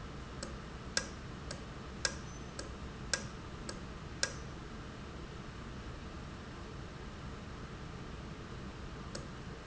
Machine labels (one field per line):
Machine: valve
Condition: normal